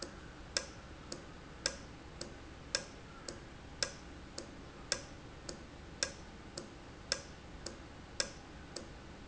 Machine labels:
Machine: valve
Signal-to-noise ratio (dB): 6 dB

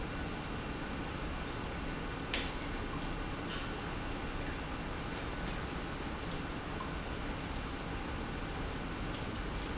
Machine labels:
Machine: pump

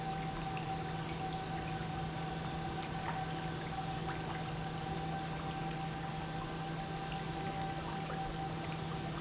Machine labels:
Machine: pump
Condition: normal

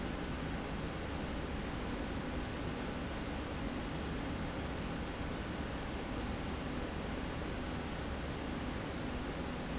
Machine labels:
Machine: slide rail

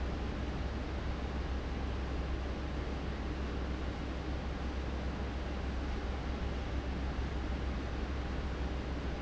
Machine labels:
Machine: fan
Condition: abnormal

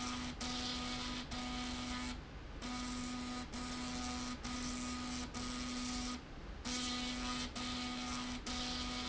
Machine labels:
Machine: slide rail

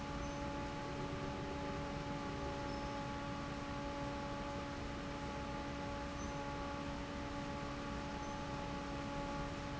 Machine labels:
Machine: fan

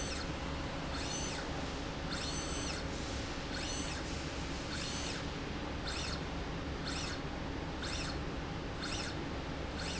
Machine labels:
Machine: slide rail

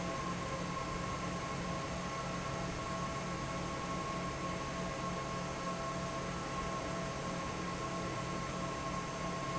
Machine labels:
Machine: fan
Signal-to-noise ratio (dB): -6 dB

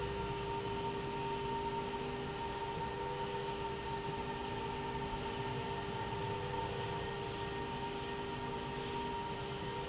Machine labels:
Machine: slide rail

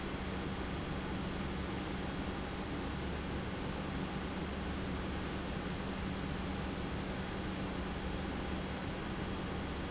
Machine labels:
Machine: pump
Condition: normal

